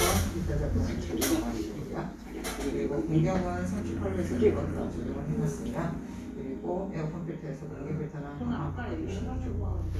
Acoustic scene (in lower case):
crowded indoor space